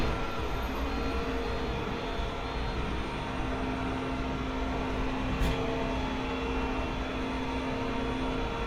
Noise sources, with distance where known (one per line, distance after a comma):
reverse beeper